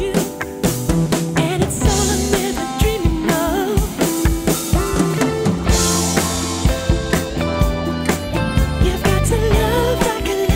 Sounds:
Music, Soundtrack music

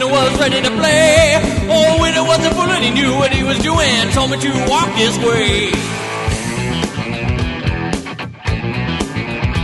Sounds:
Music

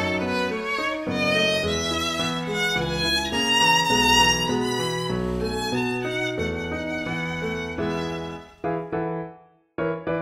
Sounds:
Musical instrument, fiddle, Music

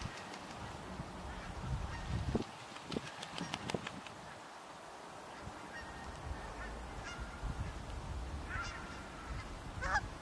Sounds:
goose honking

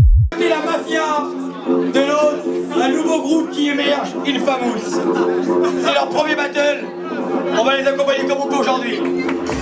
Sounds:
Speech, Music

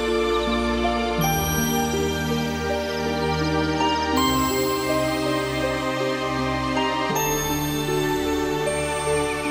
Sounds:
New-age music, Background music, Music

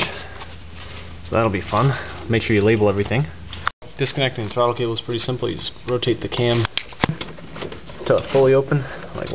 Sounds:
Speech

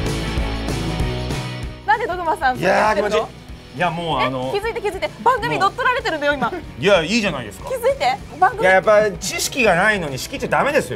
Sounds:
Speech, Music

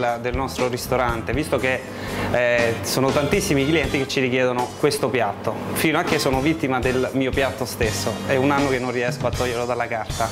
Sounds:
Music, Speech

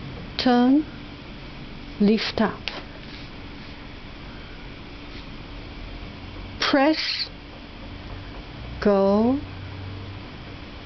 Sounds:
Speech

